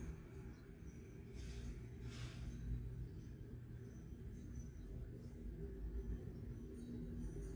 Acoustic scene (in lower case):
residential area